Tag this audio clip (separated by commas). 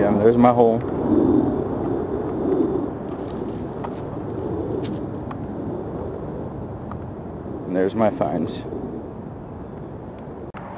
Speech